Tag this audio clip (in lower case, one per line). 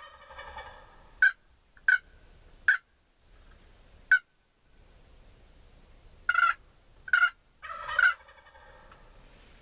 gobble
turkey gobbling
turkey
fowl